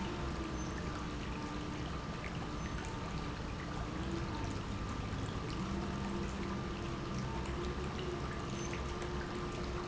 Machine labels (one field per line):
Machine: pump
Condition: normal